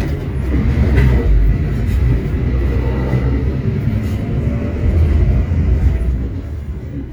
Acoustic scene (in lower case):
bus